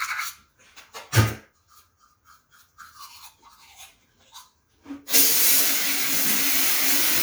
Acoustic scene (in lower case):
restroom